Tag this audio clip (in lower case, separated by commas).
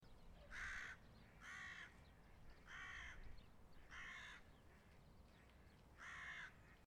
animal, bird, wild animals, crow